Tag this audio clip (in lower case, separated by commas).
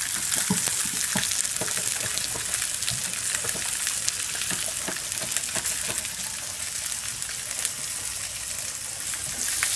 frying (food)